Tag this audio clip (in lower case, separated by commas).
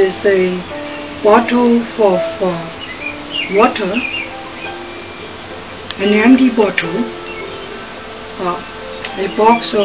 speech, music